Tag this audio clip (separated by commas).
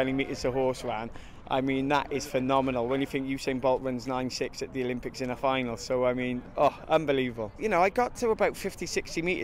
Speech